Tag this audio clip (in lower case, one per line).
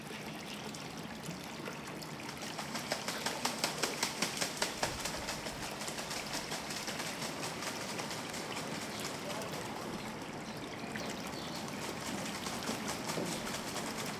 wild animals
animal
bird